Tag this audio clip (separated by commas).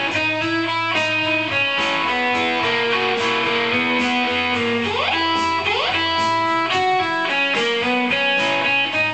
Music, Musical instrument, Plucked string instrument, Guitar